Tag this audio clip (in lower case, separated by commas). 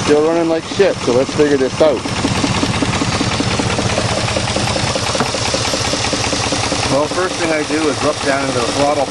vehicle, speech